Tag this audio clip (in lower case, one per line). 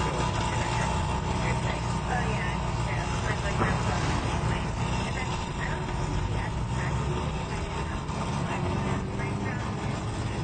speech